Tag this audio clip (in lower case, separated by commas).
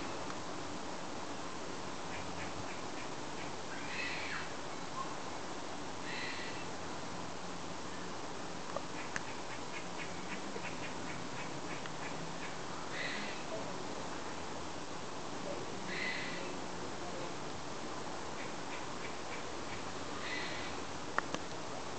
wild animals, animal